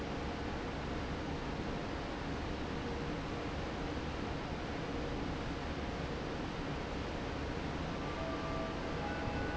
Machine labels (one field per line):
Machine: fan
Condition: normal